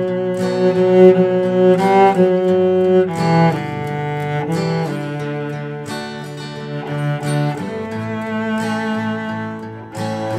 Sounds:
Music, Guitar, Plucked string instrument, Musical instrument, Strum, Acoustic guitar

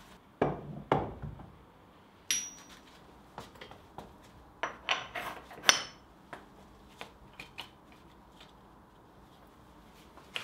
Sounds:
forging swords

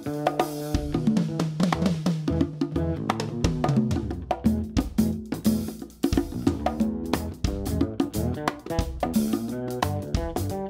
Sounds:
playing congas

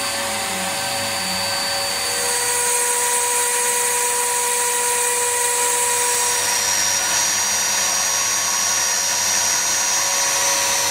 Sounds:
Tools

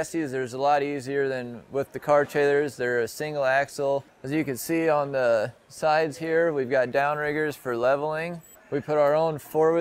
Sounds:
Speech

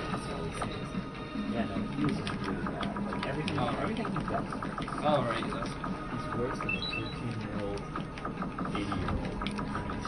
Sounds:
Music, Speech

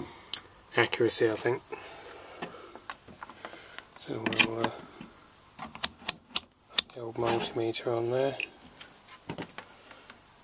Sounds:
Speech, inside a small room

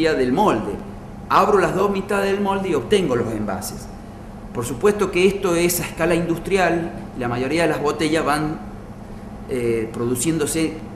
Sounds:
Speech

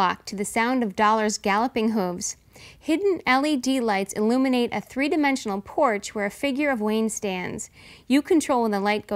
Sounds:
Speech

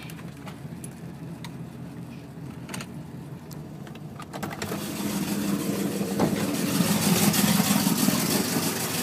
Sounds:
car engine starting, Medium engine (mid frequency), Engine, Vehicle, Engine starting

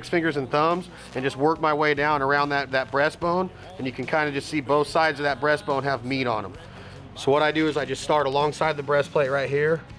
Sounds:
Speech, Music

